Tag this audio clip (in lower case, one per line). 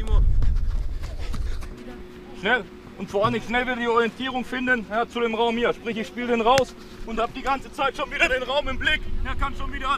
shot football